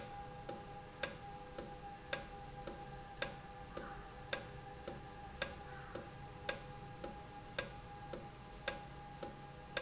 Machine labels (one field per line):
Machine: valve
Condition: normal